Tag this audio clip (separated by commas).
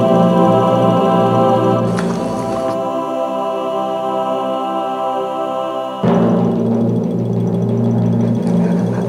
Music, Domestic animals